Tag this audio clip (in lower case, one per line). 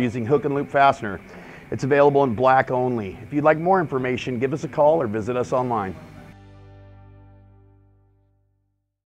speech
music